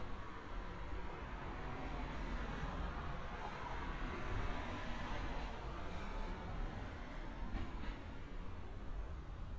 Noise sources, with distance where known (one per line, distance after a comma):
background noise